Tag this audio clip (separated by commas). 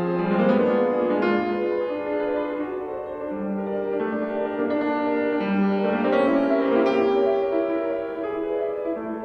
playing piano, Piano, Music